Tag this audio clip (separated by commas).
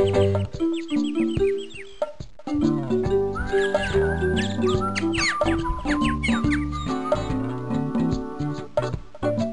Music